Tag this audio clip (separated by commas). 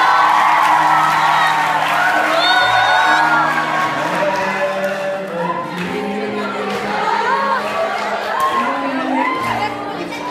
Music, Whoop, Speech